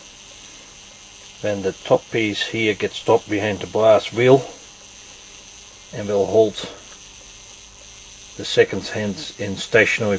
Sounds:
speech
inside a small room

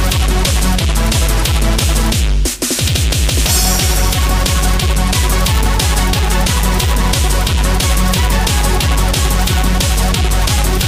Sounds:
music

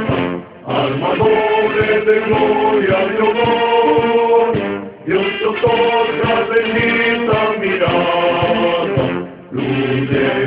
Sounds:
music

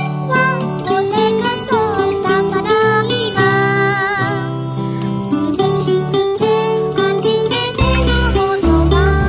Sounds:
music

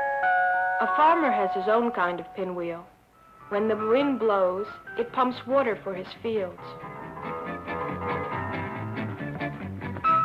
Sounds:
music
speech

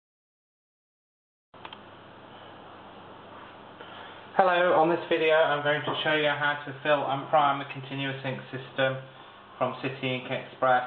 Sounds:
speech

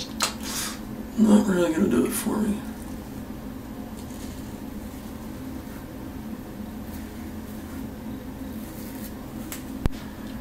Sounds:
speech
inside a small room

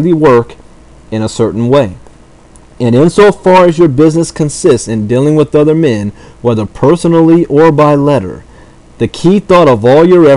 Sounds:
speech
narration

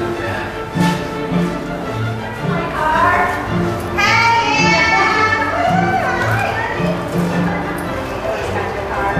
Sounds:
speech
music

